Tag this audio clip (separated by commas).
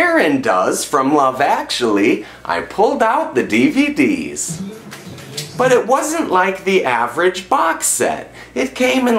Speech, Music